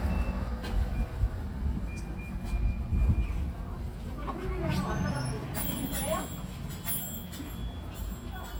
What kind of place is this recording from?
residential area